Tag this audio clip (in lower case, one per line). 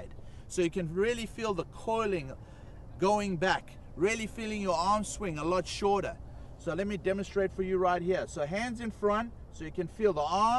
speech